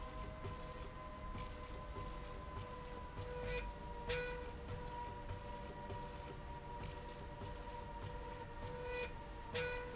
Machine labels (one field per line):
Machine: slide rail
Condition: normal